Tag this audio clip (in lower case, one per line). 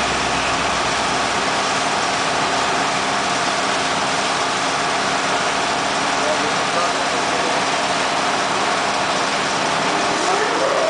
speech